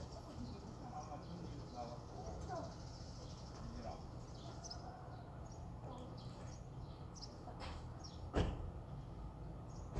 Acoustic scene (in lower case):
residential area